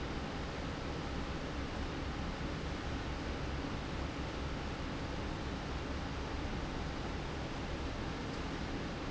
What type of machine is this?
fan